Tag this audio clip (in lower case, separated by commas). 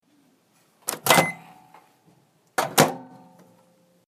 home sounds, microwave oven